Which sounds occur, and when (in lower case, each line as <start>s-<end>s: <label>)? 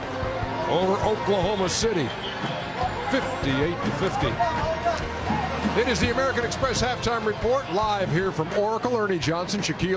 0.0s-9.9s: crowd
0.0s-9.9s: music
0.7s-2.1s: man speaking
2.1s-3.3s: speech
3.1s-5.1s: man speaking
4.9s-5.1s: tick
5.2s-5.6s: human voice
5.6s-9.9s: man speaking